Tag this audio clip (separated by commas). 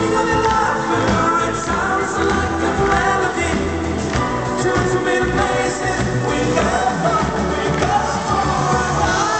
Cheering, Music, Sound effect